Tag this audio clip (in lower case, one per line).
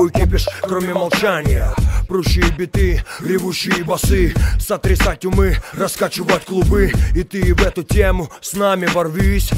rapping
music